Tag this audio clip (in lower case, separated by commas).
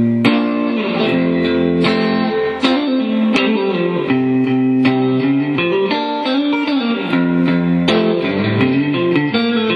music